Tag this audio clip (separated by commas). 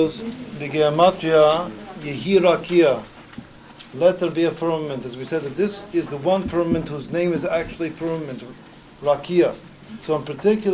Speech